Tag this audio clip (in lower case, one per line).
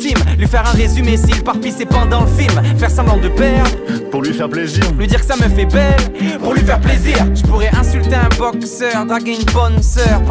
music
speech